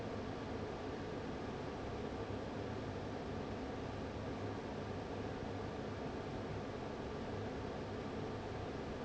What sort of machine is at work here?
fan